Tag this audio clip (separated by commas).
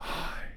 Human voice, Whispering